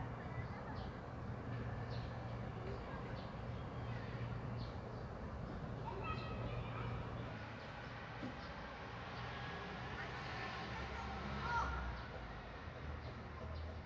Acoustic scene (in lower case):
residential area